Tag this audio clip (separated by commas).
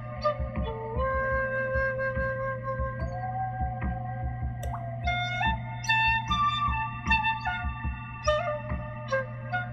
woodwind instrument, Flute